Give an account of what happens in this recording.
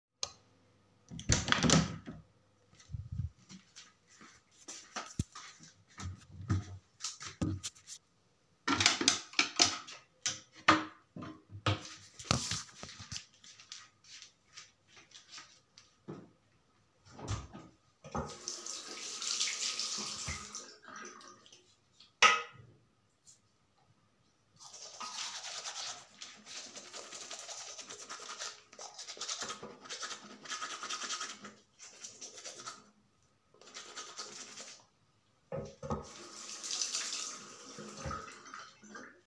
I turned on the light, opened the door, took the toothbrush & then started brushing my teeth.